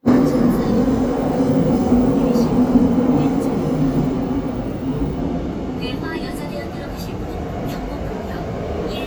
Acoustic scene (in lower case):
subway train